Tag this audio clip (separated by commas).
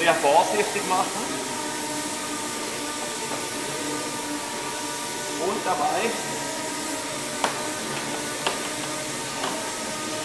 Speech